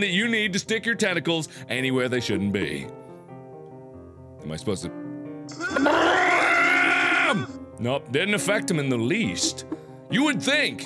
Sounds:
speech, music

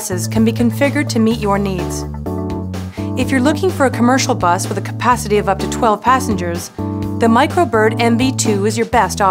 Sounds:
speech, music

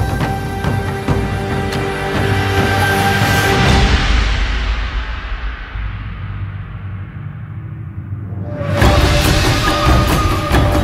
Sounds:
middle eastern music, soundtrack music, music

